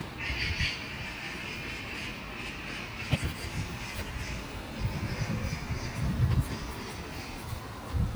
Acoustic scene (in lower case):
park